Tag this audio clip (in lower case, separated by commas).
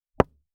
knock, wood, home sounds, door